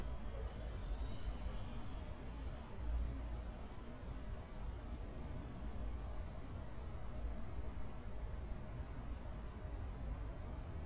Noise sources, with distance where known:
background noise

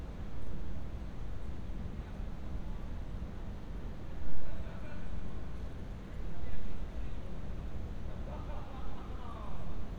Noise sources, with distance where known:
background noise

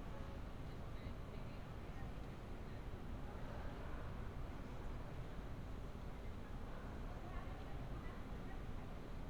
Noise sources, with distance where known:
person or small group talking, far

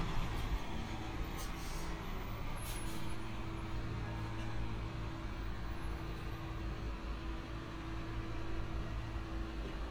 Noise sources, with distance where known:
background noise

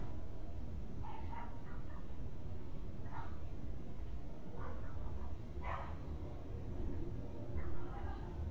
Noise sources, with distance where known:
dog barking or whining, far

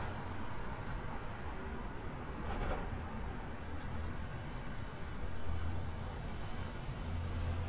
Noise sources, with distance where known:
large-sounding engine, far

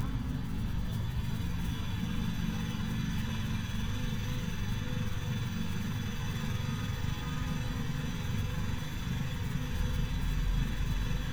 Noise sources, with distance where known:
unidentified impact machinery, far

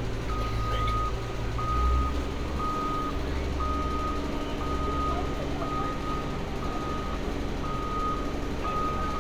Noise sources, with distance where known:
reverse beeper

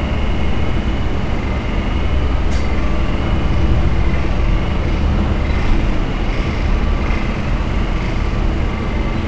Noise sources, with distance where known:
large-sounding engine, near

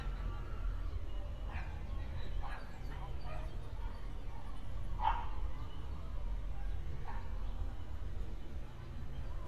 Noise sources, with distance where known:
background noise

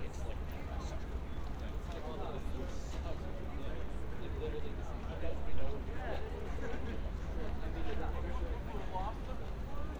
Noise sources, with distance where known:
person or small group talking, near

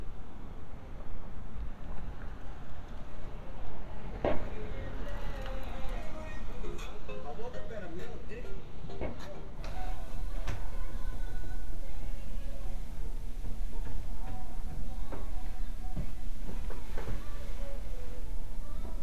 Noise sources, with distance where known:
music from an unclear source

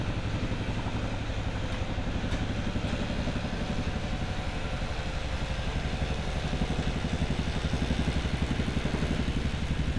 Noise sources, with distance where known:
unidentified impact machinery

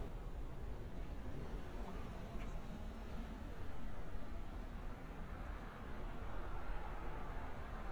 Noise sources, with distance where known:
background noise

